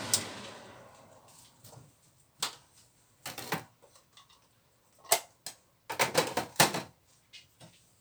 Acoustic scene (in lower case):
kitchen